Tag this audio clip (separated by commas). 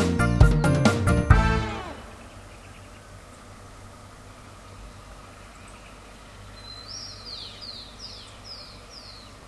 outside, rural or natural, Music